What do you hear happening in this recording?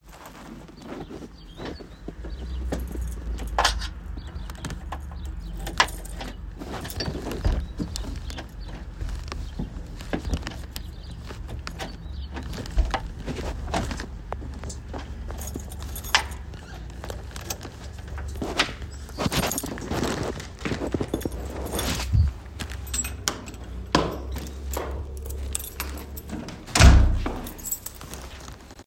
I walked to the door while holding a keychain in my hand. I used the keys to open the door and then I closed the door.